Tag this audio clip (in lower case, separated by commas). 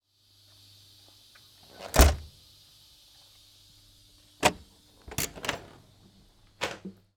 vehicle, door, train, home sounds, rail transport, slam